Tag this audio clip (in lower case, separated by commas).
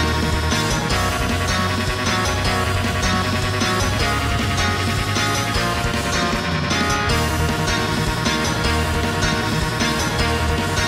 musical instrument, electric guitar, plucked string instrument, music, guitar